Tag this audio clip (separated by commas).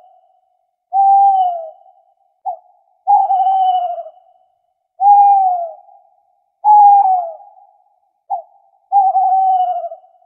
owl hooting